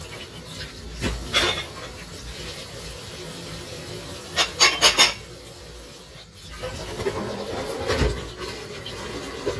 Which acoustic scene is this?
kitchen